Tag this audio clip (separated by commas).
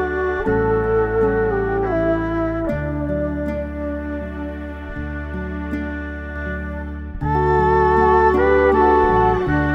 playing erhu